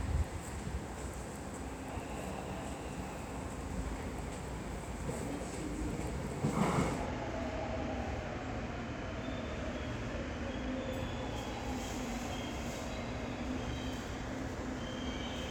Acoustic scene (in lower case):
subway station